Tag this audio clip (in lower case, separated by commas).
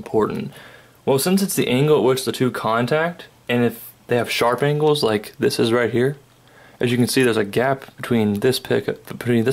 speech